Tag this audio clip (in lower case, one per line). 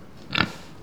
livestock
animal